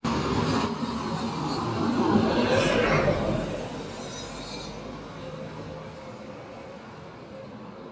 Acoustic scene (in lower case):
street